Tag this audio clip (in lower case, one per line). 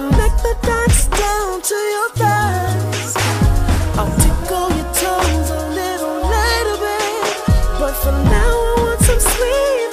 hip hop music
music